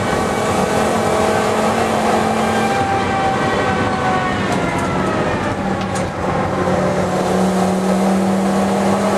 Cars racing at accelerated speeds